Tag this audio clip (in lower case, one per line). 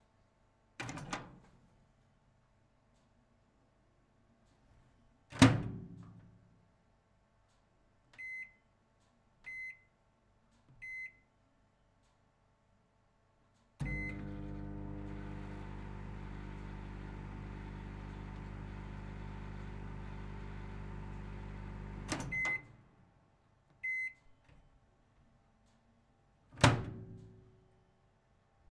domestic sounds
microwave oven